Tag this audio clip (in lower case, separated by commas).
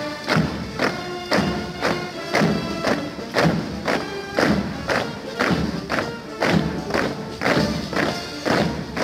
people marching